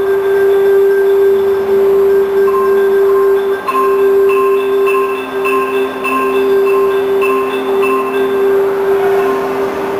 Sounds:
xylophone, music, musical instrument

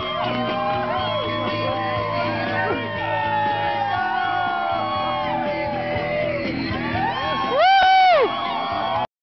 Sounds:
music

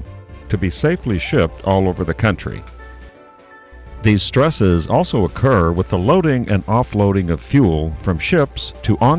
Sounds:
speech, music

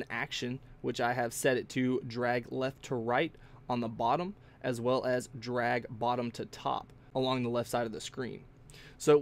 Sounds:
speech

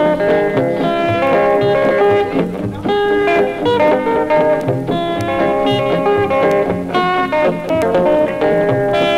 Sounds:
music, rock and roll

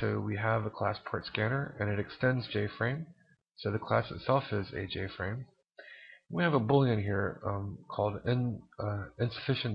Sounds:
speech

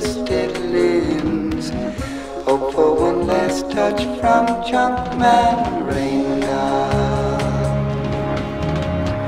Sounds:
music

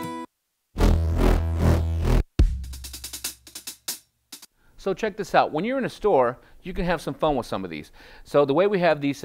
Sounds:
music, keyboard (musical), sampler, speech, musical instrument, synthesizer

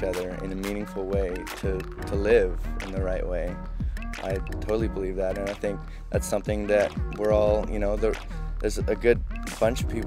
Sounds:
music, speech

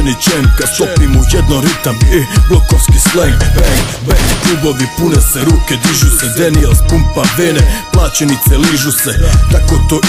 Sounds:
music

